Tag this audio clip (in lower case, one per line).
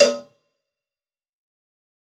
bell
cowbell